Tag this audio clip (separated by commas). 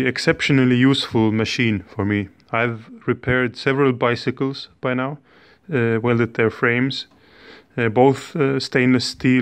Speech